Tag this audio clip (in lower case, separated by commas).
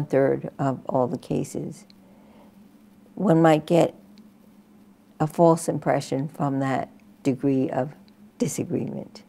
speech